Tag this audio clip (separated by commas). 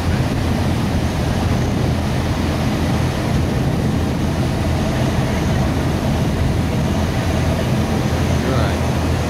Speech, Water vehicle, Vehicle